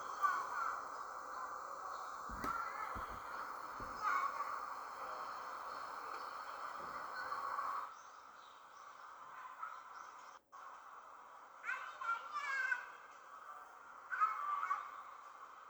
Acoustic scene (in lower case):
park